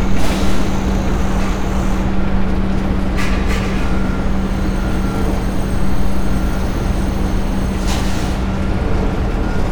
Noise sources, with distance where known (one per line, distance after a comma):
large-sounding engine, near